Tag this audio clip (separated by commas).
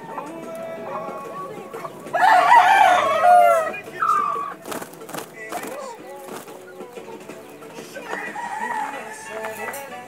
pheasant crowing